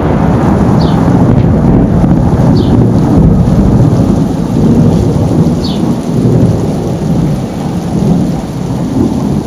Heavy rainfall and thunder